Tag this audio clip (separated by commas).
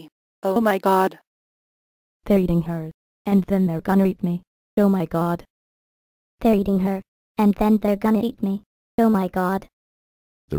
Speech